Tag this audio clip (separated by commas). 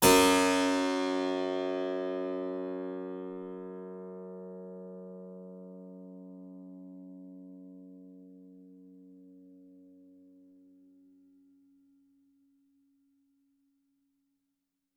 Keyboard (musical), Musical instrument, Music